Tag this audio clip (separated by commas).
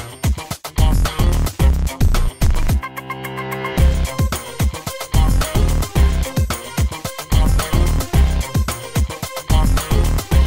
Music